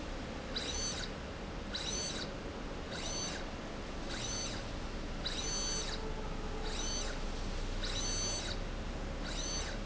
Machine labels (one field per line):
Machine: slide rail